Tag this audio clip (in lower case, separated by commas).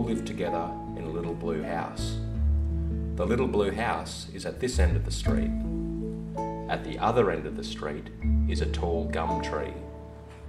music, speech